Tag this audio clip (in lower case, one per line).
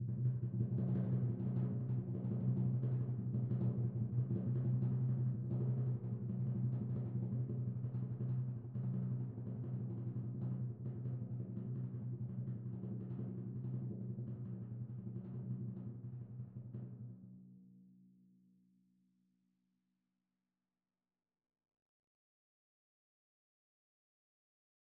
percussion
drum
musical instrument
music